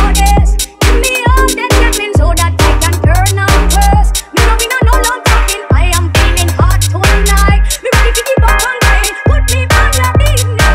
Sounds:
Music

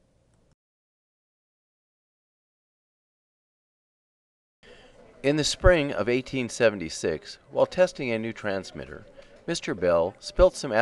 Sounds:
Speech

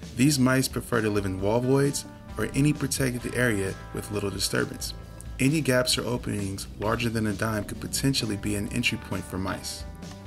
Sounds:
Music, Speech

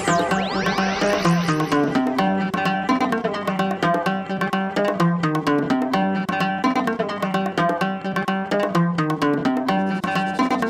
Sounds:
Music

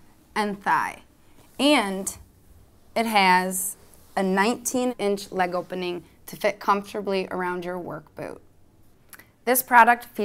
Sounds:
Speech

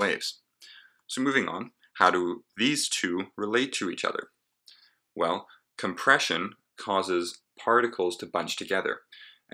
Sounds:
Speech

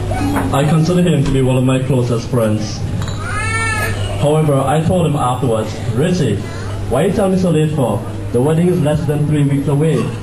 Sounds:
Speech, man speaking

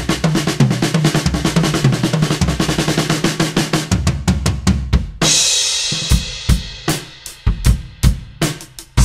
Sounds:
Bass drum, Cymbal, Snare drum, Drum, Musical instrument, Drum kit, Music, Hi-hat, Sound effect

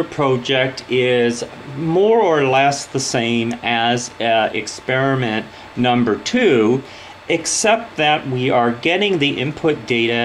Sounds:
Speech

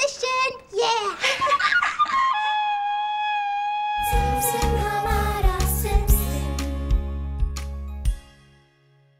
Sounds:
kid speaking, Flute

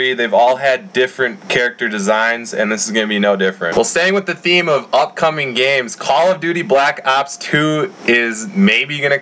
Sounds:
Speech

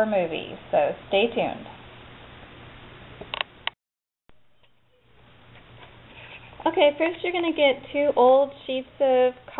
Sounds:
Speech

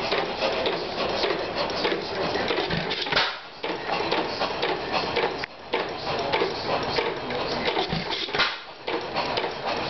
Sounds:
Engine, Speech

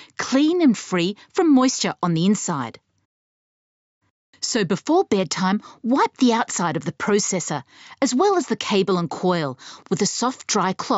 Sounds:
Speech

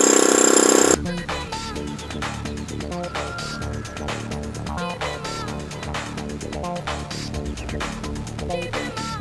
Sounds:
Music

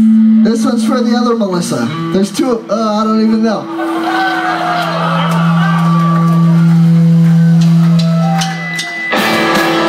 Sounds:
Speech, Music

